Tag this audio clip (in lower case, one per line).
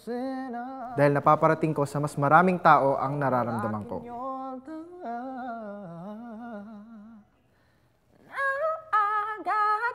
people battle cry